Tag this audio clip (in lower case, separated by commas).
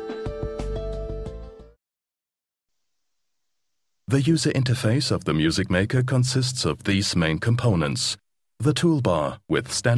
music, speech